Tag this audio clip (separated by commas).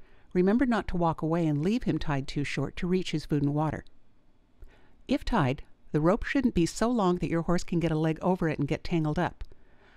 Speech